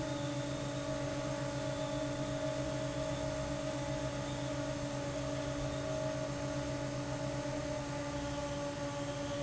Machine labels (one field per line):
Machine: fan